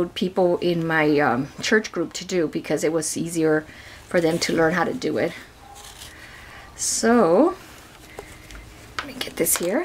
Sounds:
mouse pattering

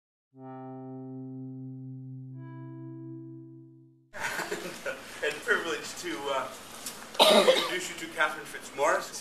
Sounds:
Music, Laughter, Speech

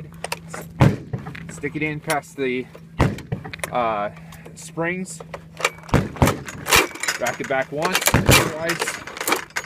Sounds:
Speech

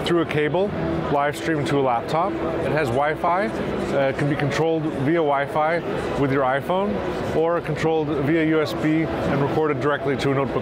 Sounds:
Speech

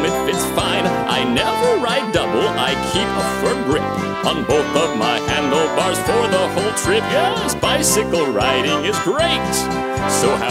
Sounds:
Music

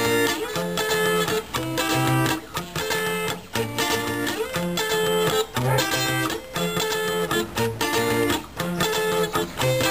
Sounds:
Electric guitar, Musical instrument, Music, Guitar

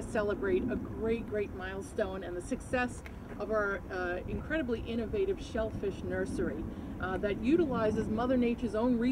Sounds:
Speech

